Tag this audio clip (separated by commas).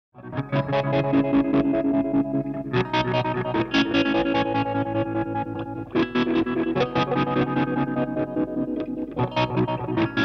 Effects unit